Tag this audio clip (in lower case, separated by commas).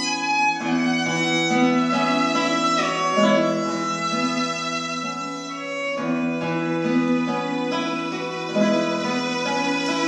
music, musical instrument, plucked string instrument, guitar